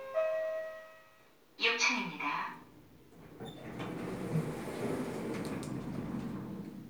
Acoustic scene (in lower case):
elevator